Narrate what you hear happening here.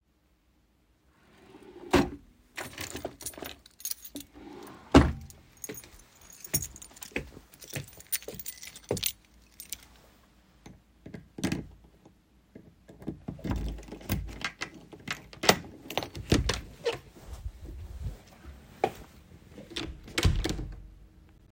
i opened the drawer, took my key, walked to the door and inserted the key into the door lock, opened the door, walked out, closed the door, locked the door with the key